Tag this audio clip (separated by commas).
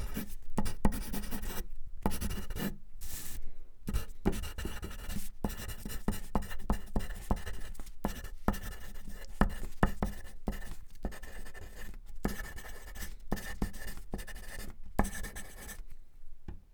Writing, Domestic sounds